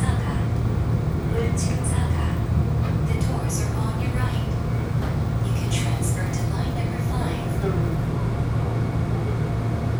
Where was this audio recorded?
on a subway train